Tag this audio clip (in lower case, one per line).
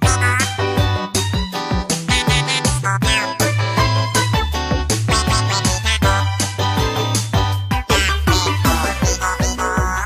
music